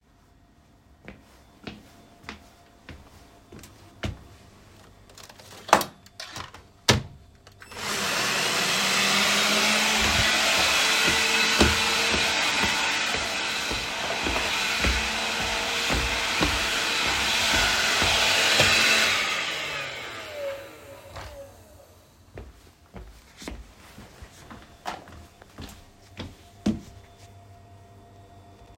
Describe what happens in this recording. I walked to the vacuum cleaner and turned it on. While vacuuming the floor, I walked across the room. Then I stopped and placed it back.